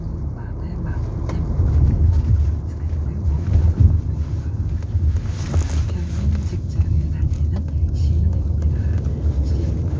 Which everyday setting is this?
car